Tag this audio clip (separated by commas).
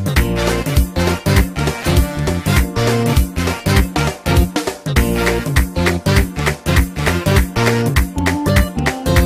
Music, Rhythm and blues